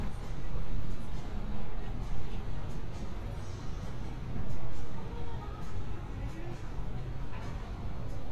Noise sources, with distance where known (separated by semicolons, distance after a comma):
music from an unclear source, far